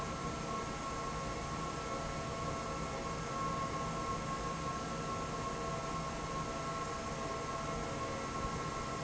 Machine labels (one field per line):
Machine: fan